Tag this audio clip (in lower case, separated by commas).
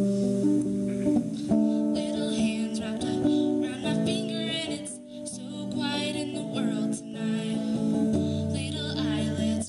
female singing, music